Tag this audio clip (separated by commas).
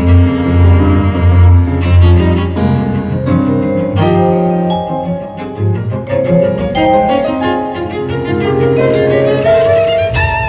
playing vibraphone